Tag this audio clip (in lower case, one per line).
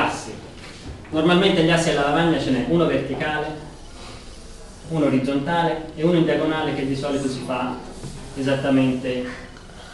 speech